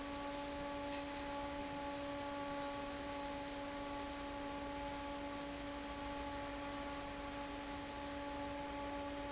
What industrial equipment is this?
fan